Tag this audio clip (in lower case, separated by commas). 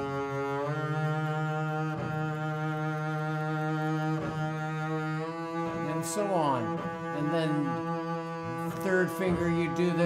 playing double bass